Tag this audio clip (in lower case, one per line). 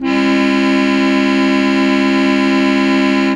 musical instrument
music
organ
keyboard (musical)